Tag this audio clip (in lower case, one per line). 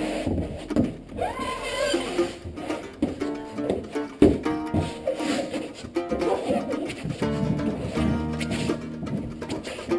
music